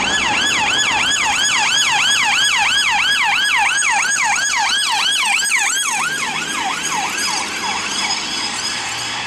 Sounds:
police car (siren)

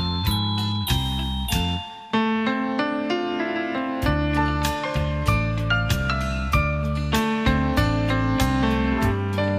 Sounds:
music

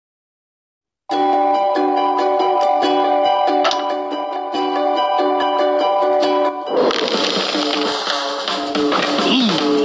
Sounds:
music
speech

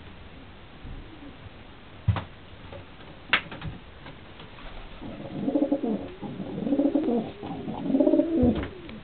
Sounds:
pets
dove
bird

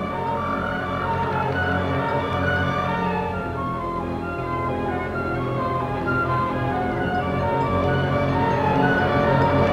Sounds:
music

